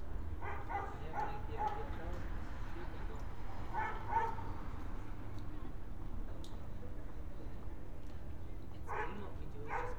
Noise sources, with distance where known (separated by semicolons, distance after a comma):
person or small group talking; dog barking or whining, far